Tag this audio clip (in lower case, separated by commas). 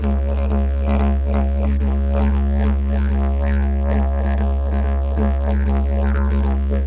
musical instrument, music